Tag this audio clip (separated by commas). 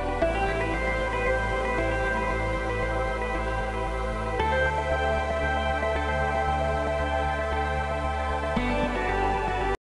Music